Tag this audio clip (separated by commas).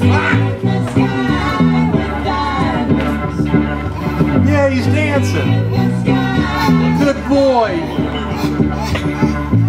Speech, Music